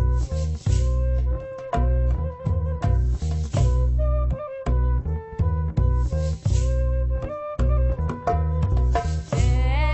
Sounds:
Mantra, Music, Orchestra

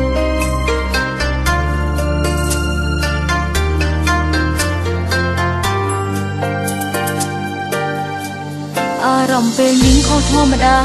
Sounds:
Music

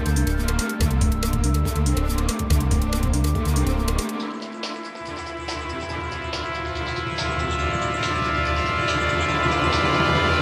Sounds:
Music

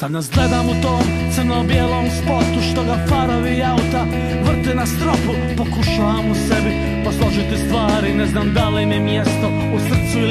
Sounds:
Singing, Independent music, Music

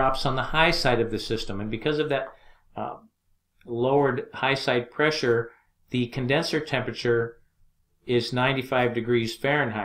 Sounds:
Speech

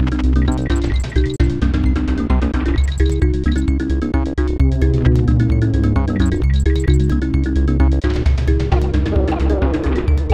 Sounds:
Music, Sound effect

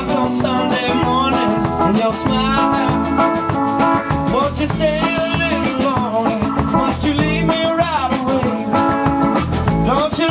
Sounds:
Music

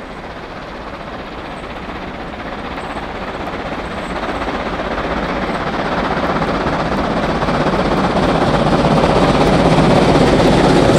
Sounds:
Helicopter, Train, Vehicle, Rail transport

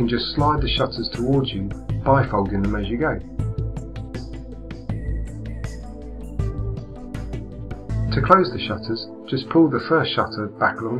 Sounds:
Speech, Music

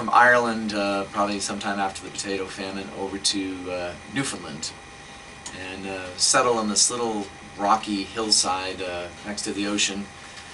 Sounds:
Speech, Radio

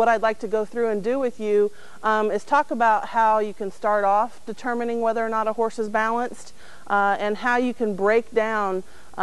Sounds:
Speech

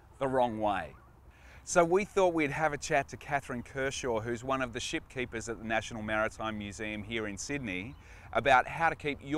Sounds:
Speech

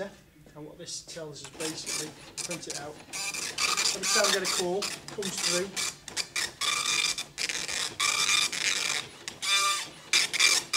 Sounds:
Speech

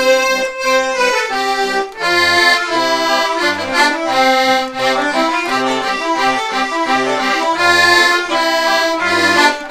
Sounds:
Music, Traditional music

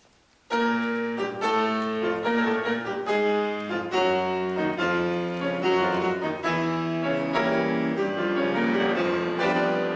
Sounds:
Music, Musical instrument

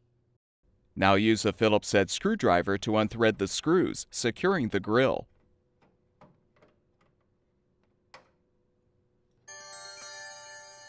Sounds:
Speech, Music

